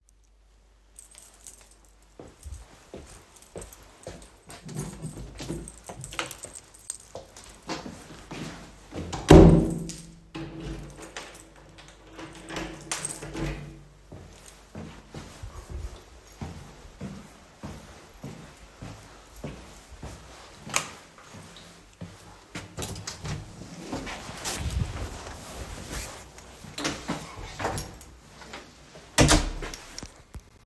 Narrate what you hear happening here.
I walked down the hallway with my keychain, switched the light, opened the door, closed it and left my partment